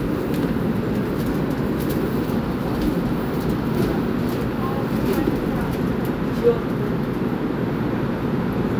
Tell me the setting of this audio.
subway train